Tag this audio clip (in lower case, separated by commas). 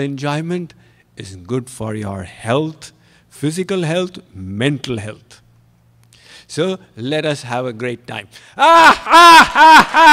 speech, snicker